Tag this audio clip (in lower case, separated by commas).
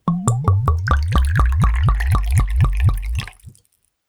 liquid